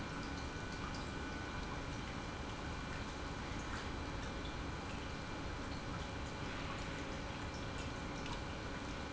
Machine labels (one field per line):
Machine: pump